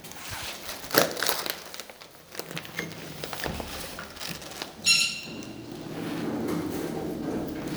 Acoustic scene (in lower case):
elevator